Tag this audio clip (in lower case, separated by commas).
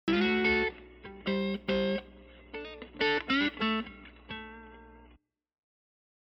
plucked string instrument, musical instrument, music, guitar